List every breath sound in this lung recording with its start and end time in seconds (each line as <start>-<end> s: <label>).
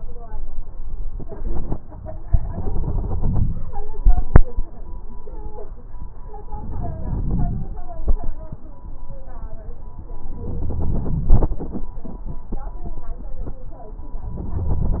2.34-3.63 s: crackles
2.34-3.65 s: inhalation
6.45-7.74 s: crackles
6.45-7.76 s: inhalation
10.30-11.84 s: inhalation
14.37-15.00 s: inhalation